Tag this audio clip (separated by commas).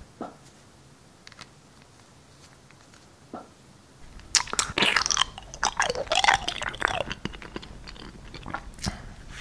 people eating noodle